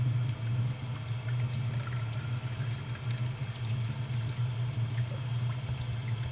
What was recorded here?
water tap